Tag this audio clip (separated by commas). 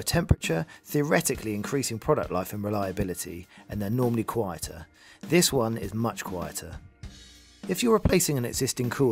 Music, Speech